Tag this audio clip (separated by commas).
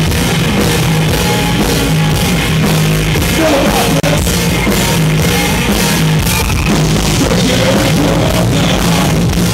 Music